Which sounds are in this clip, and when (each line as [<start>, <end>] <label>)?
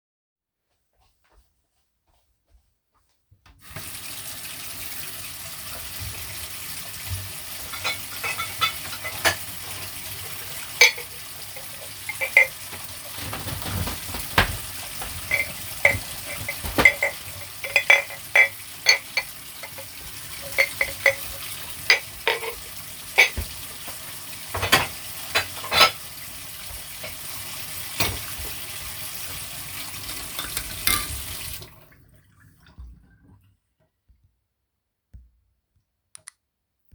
[0.26, 3.45] footsteps
[3.58, 32.55] running water
[7.66, 26.12] cutlery and dishes
[27.72, 28.54] cutlery and dishes
[30.33, 31.18] cutlery and dishes
[34.92, 35.38] footsteps